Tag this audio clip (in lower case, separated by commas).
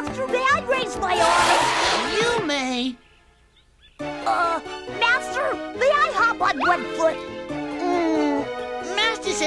music, speech